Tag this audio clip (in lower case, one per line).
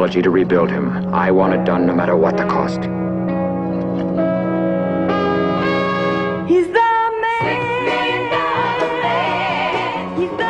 speech
music